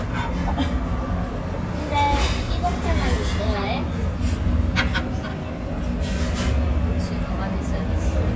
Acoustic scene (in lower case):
restaurant